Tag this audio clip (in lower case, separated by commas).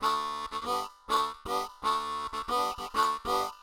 harmonica, music, musical instrument